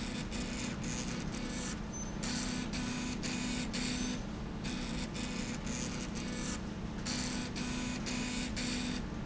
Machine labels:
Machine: slide rail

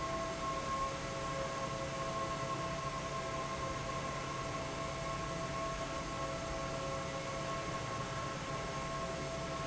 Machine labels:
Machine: fan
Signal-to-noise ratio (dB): -6 dB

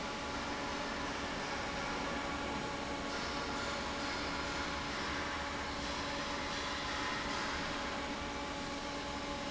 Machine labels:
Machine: fan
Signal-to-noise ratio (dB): -6 dB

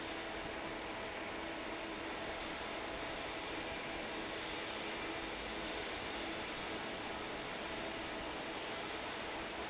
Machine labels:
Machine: fan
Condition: normal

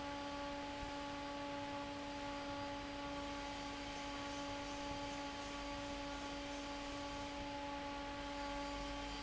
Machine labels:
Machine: fan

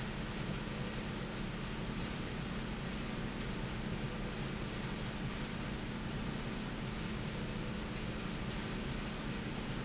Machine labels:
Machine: slide rail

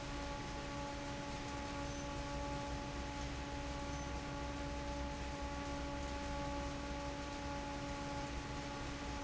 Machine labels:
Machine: fan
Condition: normal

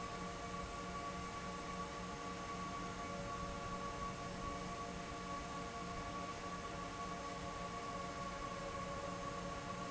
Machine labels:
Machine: fan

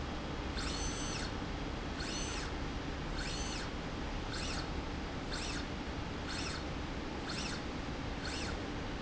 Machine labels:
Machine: slide rail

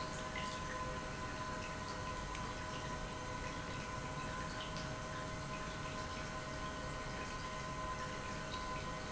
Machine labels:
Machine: pump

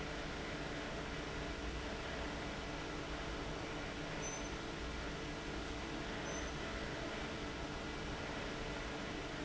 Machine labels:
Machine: fan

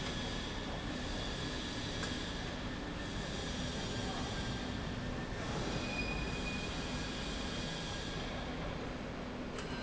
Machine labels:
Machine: slide rail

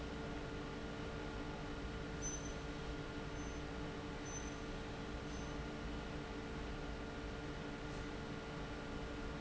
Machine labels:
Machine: fan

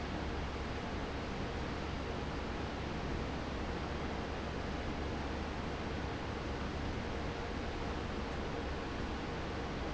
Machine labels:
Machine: fan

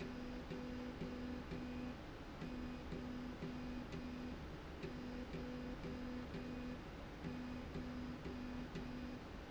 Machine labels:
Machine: slide rail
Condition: normal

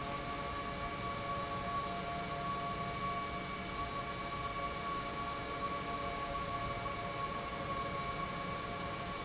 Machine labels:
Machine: pump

